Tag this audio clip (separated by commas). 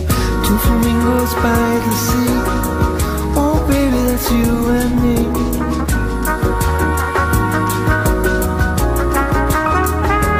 Musical instrument, Singing, Music